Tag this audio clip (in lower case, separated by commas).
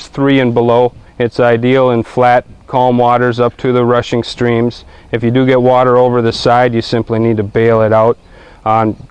speech